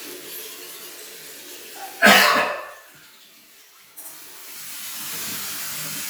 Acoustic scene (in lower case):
restroom